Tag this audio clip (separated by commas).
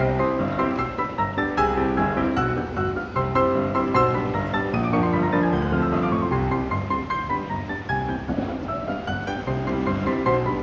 Music